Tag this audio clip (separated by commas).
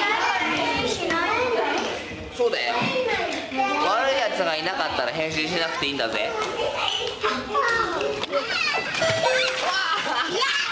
Child speech, Children playing, inside a large room or hall, Speech